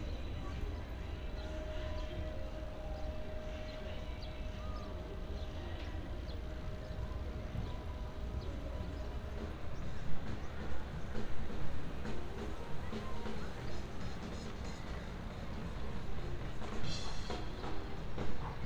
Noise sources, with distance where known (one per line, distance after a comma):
music from an unclear source